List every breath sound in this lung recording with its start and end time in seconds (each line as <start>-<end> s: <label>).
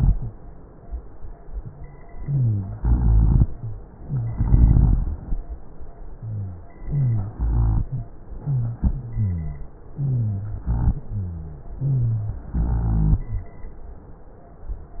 2.18-2.75 s: inhalation
2.20-2.73 s: rhonchi
2.75-3.44 s: exhalation
2.75-3.44 s: rhonchi
4.02-4.36 s: inhalation
4.02-4.36 s: wheeze
4.40-5.18 s: exhalation
4.40-5.18 s: rhonchi
6.15-6.62 s: wheeze
6.85-7.32 s: inhalation
6.85-7.32 s: rhonchi
7.36-7.91 s: exhalation
7.36-7.91 s: rhonchi
8.46-8.84 s: wheeze
8.90-9.73 s: exhalation
8.90-9.73 s: rhonchi
9.96-10.64 s: inhalation
9.96-10.64 s: rhonchi
10.66-11.12 s: exhalation
10.66-11.12 s: rhonchi
11.14-11.74 s: rhonchi
11.78-12.45 s: inhalation
11.78-12.45 s: rhonchi
12.52-13.28 s: exhalation
12.52-13.28 s: rhonchi